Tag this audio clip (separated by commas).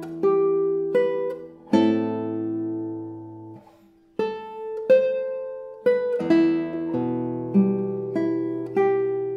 Musical instrument, Guitar, Plucked string instrument, Strum, Music, Acoustic guitar